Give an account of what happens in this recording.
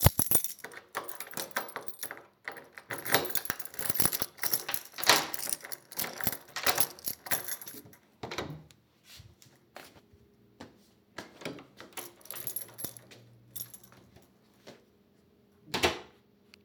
I approached the door while holding a keychain. I unlocked and opened the door and stepped inside. After entering the door was closed again.